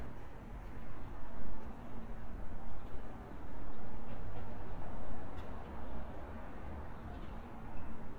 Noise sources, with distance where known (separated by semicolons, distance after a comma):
background noise